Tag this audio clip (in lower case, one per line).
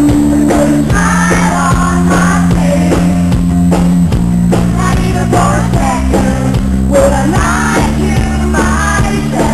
music